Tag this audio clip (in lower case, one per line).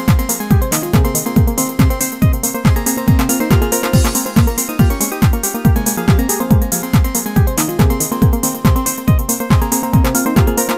music